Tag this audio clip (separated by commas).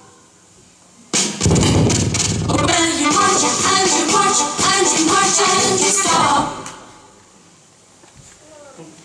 Music